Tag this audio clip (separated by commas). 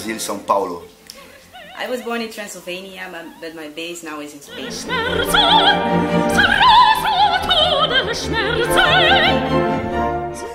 Opera